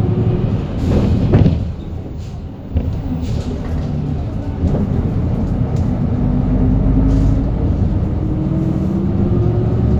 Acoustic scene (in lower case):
bus